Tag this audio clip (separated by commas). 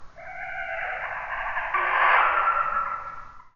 Animal